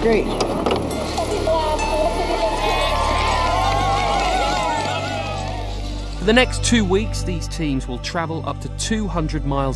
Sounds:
Speech, Music

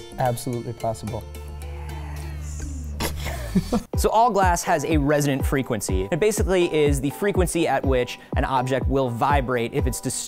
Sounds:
Music, Speech

